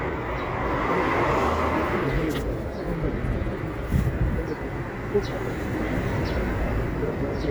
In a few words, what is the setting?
residential area